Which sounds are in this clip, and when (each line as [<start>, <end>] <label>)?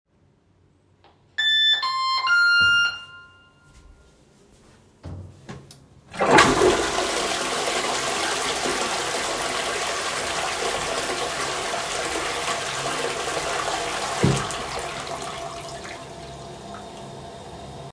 [1.35, 3.30] bell ringing
[6.08, 17.83] toilet flushing